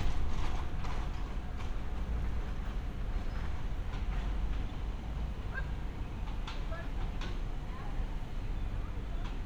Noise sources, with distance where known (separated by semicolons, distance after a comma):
person or small group talking